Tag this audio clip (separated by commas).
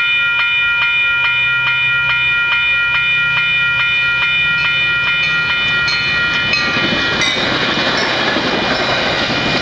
Car, Vehicle, Train, Rail transport, train wagon